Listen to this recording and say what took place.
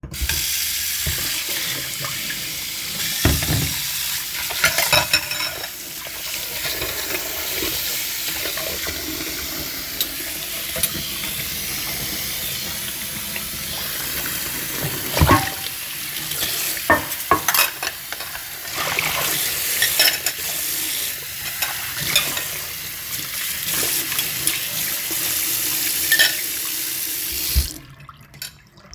I started water tap, washed the plates and Couturiers, turned off the water tap